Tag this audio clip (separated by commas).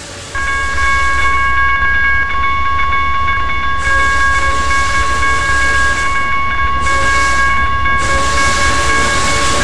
Train, Vehicle